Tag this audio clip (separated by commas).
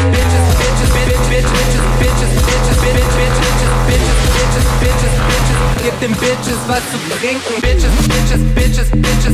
Music, Electronic music